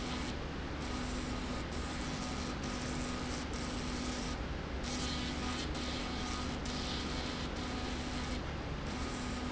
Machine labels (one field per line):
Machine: slide rail